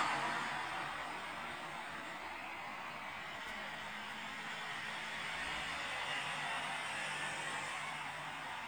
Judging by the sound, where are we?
on a street